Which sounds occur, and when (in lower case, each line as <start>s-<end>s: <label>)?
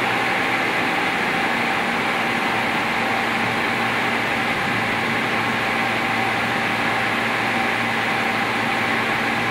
0.0s-9.5s: medium engine (mid frequency)